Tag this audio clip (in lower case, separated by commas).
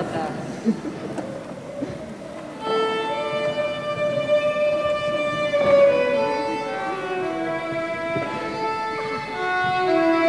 musical instrument, music, speech, violin